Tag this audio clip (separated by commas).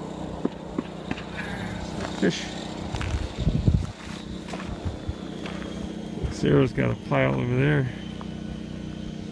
Speech, outside, rural or natural